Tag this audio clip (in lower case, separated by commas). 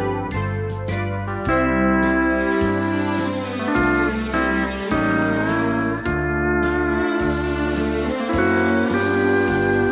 slide guitar, musical instrument, music